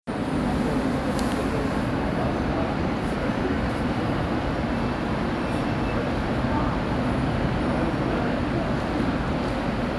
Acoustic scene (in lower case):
subway station